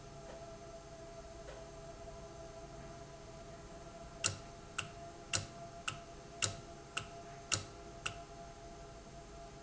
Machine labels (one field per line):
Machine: valve